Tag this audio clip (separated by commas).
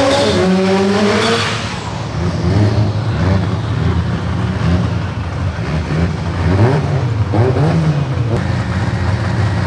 Car, Vehicle